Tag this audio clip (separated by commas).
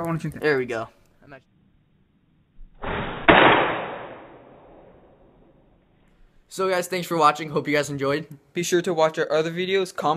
Speech